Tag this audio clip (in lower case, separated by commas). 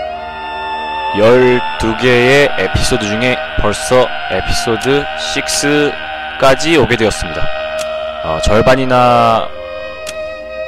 speech, music